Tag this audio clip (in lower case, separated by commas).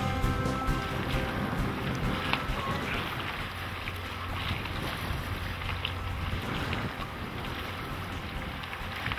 ship, wind, wind noise (microphone), boat